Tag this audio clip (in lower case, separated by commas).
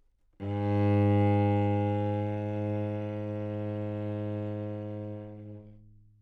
music, musical instrument, bowed string instrument